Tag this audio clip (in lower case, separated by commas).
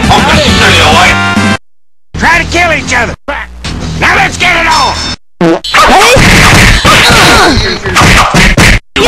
music, speech